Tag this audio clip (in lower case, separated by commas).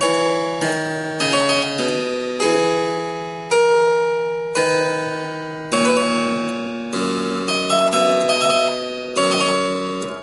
harpsichord, playing harpsichord, music